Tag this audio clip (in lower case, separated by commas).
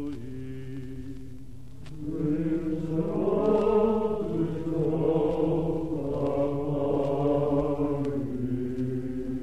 chant